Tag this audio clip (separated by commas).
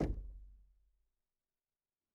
Door, Knock, Domestic sounds